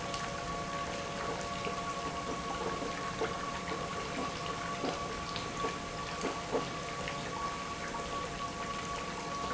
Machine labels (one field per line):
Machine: pump